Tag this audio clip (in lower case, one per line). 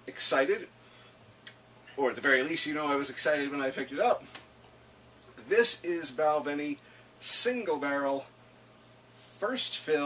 speech